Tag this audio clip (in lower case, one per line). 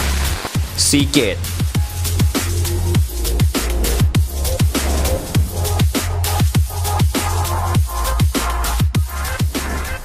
speech
music